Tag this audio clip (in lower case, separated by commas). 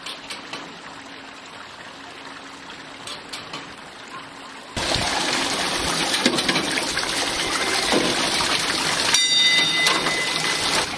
dribble, bell